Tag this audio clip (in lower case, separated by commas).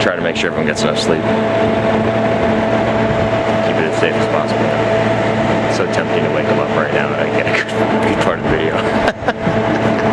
speech